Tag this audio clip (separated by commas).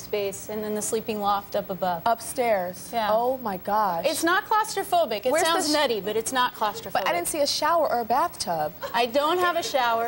woman speaking